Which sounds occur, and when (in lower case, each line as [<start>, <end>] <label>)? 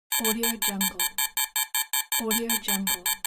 [0.11, 3.25] alarm
[0.19, 1.07] speech synthesizer
[2.22, 3.08] speech synthesizer